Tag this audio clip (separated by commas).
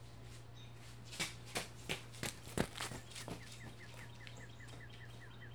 Run